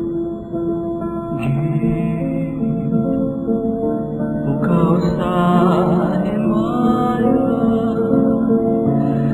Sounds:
Music

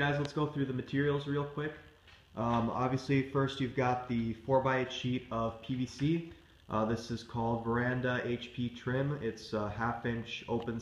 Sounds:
inside a small room, Speech

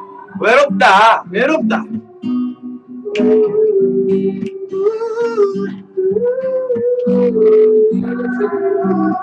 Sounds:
Speech, Music

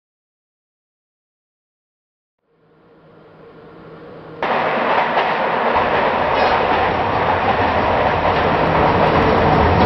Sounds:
Rail transport, Train, train wagon, Clickety-clack

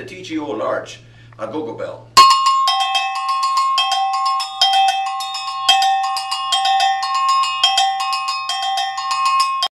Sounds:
Speech, Music, Jingle bell

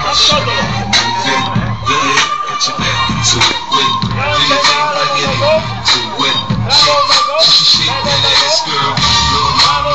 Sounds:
Music

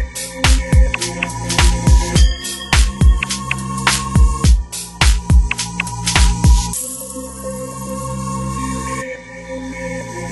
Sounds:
Music

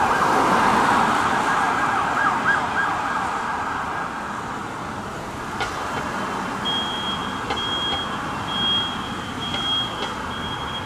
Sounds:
police car (siren)

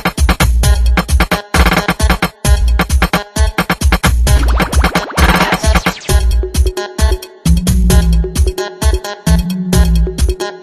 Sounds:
Dance music, Music

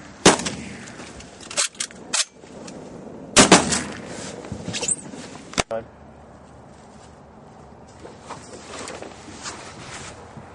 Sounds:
Speech

